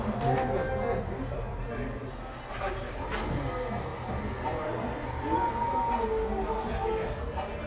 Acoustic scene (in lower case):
cafe